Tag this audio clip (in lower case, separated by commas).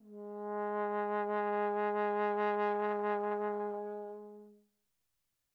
brass instrument, musical instrument, music